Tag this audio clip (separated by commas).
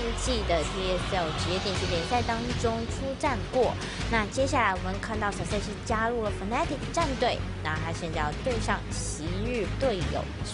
Music, Speech